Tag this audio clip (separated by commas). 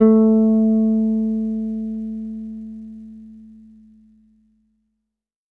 Music, Bass guitar, Guitar, Plucked string instrument, Musical instrument